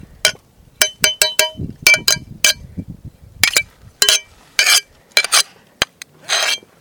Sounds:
Glass

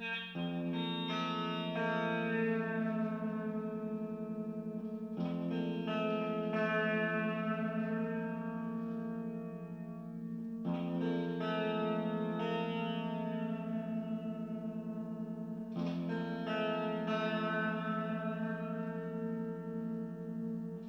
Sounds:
Music, Guitar, Musical instrument, Plucked string instrument

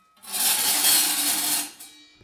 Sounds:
Tools

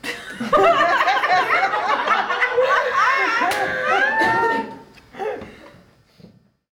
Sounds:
Human voice, Clapping, Human group actions, Hands, Crowd, Laughter

